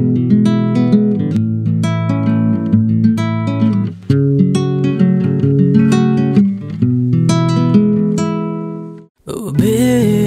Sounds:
Music, Jazz, Happy music, Independent music

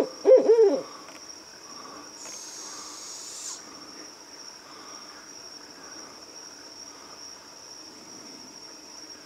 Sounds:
owl hooting

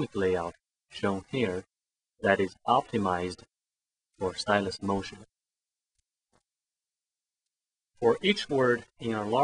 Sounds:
Speech

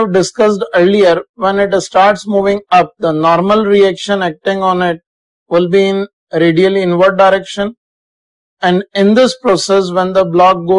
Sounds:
Speech

